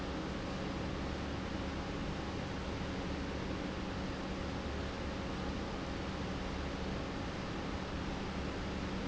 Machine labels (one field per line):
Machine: pump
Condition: normal